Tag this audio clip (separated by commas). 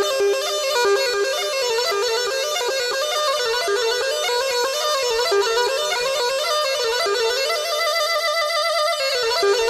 Music